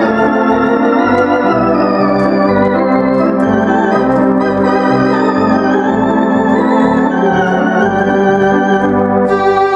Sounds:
music
tender music

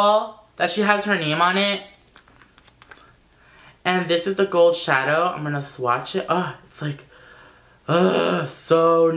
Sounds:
speech

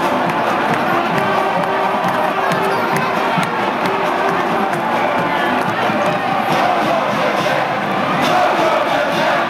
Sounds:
music

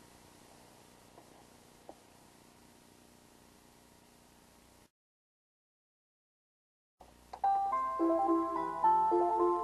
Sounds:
music

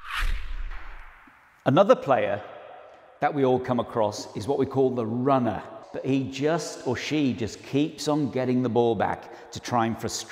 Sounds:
playing squash

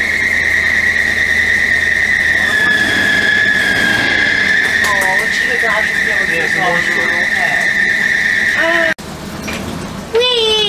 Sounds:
vehicle
bus
speech

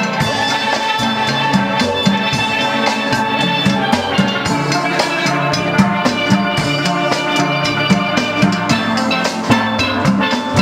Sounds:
music
steelpan

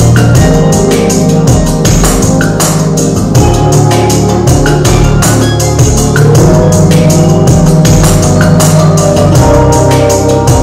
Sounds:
percussion
music

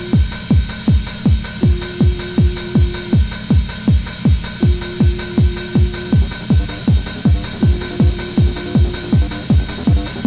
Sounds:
electronic music
music

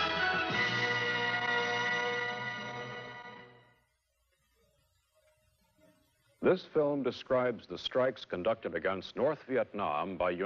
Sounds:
music
speech

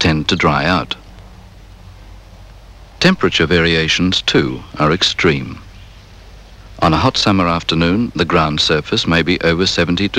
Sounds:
speech

